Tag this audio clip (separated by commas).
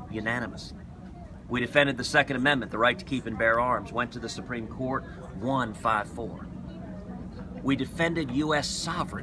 Speech